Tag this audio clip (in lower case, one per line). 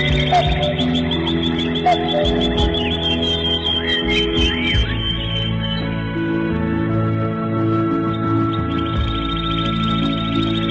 music